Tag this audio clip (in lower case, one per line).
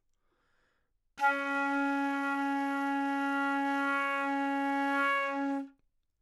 musical instrument
woodwind instrument
music